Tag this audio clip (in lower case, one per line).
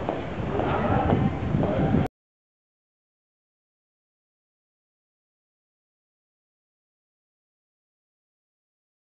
speech